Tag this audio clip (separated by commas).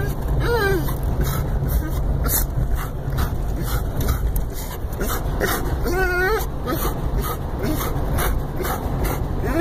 dog whimpering